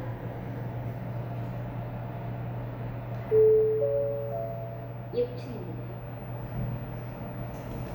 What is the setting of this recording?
elevator